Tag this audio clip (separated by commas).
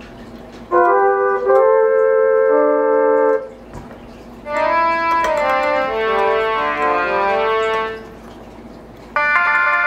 Music